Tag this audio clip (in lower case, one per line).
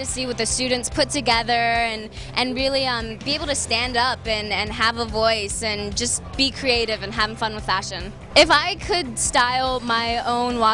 speech
music